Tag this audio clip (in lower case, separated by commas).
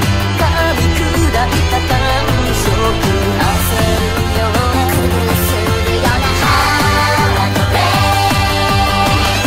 music, soundtrack music